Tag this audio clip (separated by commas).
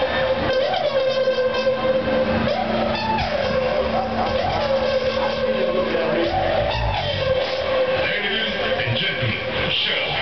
Music, Speech